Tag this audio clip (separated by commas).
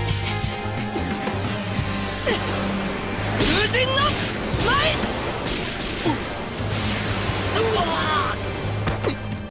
Speech, Music